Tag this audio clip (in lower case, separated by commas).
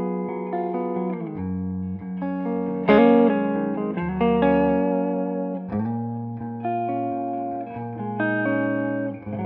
music